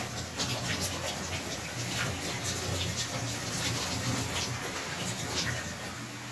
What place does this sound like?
restroom